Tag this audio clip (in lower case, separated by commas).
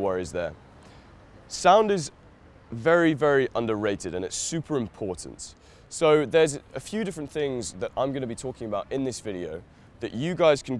speech